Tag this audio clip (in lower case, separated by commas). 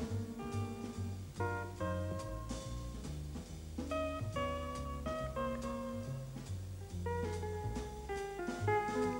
music